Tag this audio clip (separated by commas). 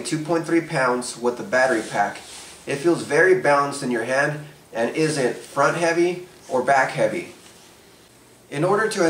Speech